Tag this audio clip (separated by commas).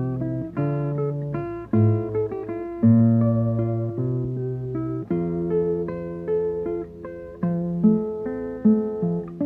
Strum, Music, Plucked string instrument, Guitar, Musical instrument, Acoustic guitar